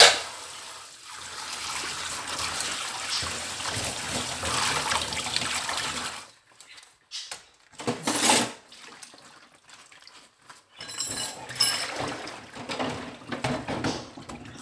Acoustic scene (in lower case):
kitchen